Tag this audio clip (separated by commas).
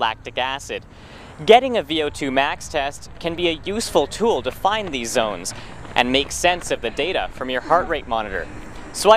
Speech, man speaking, Run